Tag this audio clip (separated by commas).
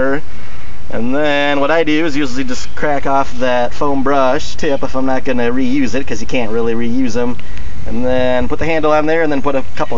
Speech